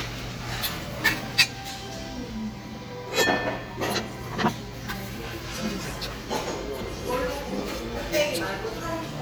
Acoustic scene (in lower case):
restaurant